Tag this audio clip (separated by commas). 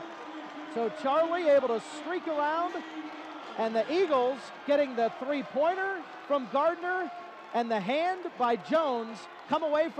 Speech